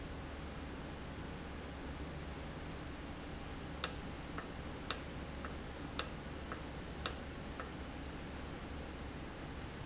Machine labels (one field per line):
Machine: valve